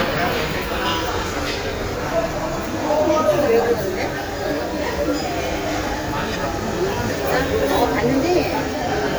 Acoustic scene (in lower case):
restaurant